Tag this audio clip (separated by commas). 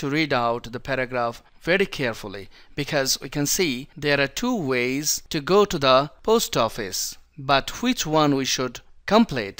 Speech